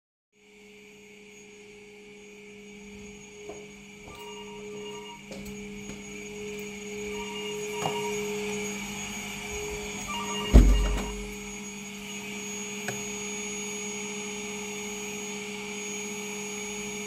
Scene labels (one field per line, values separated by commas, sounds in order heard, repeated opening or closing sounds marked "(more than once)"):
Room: hallway, living room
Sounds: vacuum cleaner, footsteps, phone ringing, window